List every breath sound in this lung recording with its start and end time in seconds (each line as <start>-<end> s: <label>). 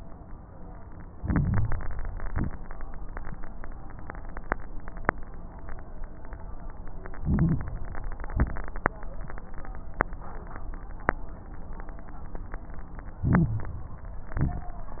1.08-2.20 s: inhalation
1.08-2.20 s: crackles
2.24-2.56 s: exhalation
2.24-2.56 s: crackles
7.12-7.73 s: inhalation
7.12-7.73 s: crackles
8.26-8.59 s: exhalation
8.26-8.59 s: crackles
13.21-13.78 s: inhalation
13.21-13.78 s: crackles
14.33-14.90 s: exhalation
14.33-14.90 s: crackles